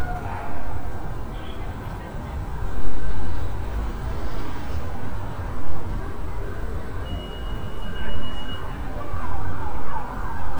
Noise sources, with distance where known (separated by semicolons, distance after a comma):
siren, far